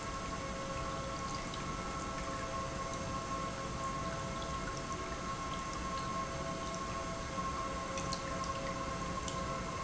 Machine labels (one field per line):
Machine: pump